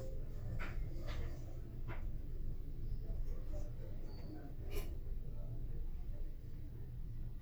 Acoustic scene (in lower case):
elevator